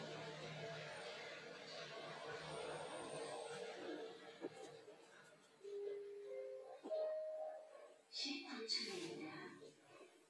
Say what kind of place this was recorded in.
elevator